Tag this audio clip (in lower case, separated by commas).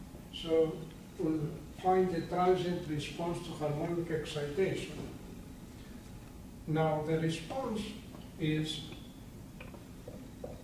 speech